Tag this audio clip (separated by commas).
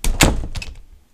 Wood, Slam, home sounds, Door, Squeak